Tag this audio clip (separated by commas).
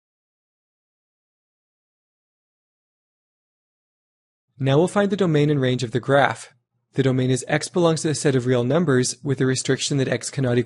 Speech, Silence